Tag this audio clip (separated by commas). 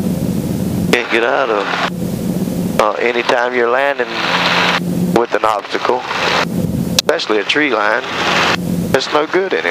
Wind noise (microphone), Wind